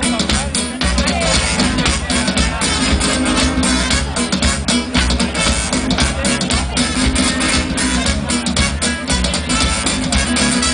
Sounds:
Speech, Music

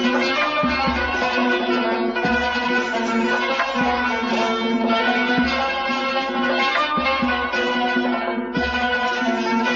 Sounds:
Music

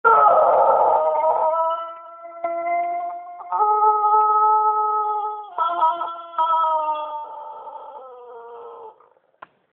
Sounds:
cock-a-doodle-doo, Animal

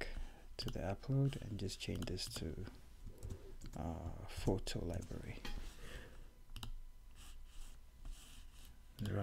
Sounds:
Clicking, Speech

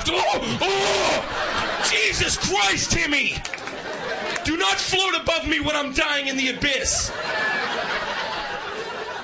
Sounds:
Speech

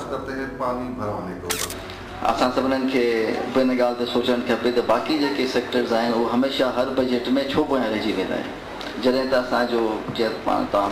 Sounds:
Speech

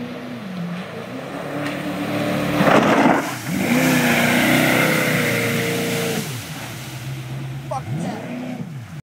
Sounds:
Speech, Vehicle, speedboat, Boat

